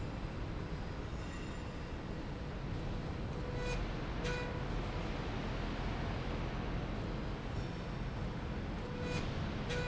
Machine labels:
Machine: slide rail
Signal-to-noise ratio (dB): -6 dB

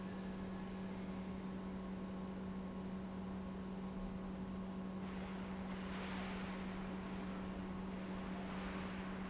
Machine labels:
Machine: pump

